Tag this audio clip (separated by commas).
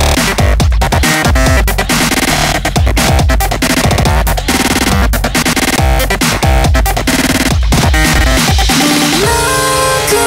Dubstep, Music